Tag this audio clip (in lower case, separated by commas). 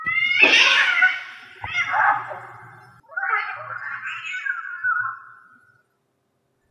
animal, meow, pets, cat